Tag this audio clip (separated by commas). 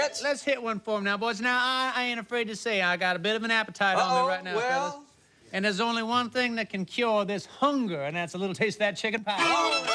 Music, Speech